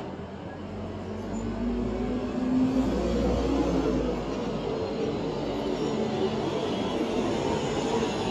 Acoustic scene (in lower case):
street